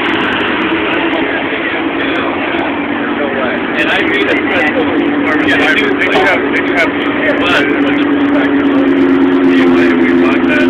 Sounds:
Vehicle, Speech

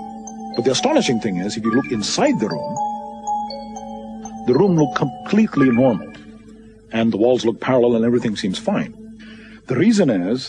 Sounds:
Speech, Music

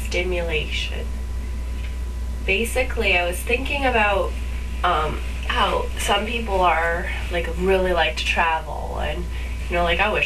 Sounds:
Speech

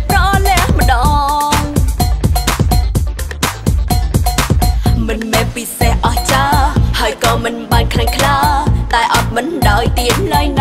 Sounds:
Music

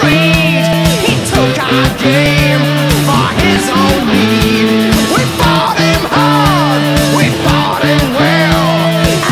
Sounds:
Music

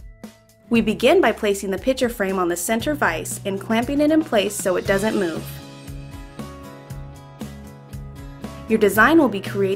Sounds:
Music, Speech

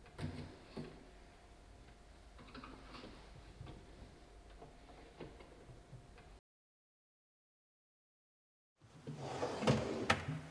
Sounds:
opening or closing drawers

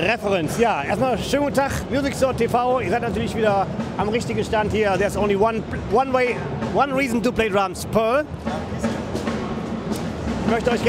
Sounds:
Drum, Speech, Musical instrument, Music, Drum kit

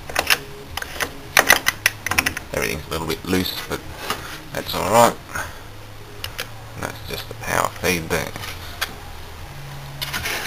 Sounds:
Speech

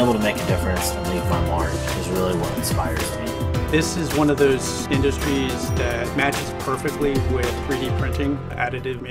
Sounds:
Speech, Music

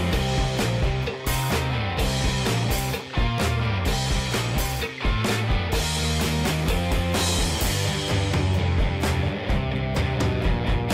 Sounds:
Music

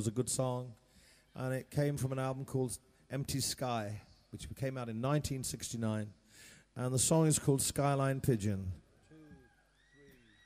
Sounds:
Speech

